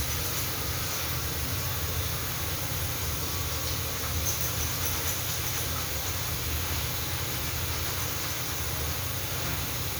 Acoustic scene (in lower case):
restroom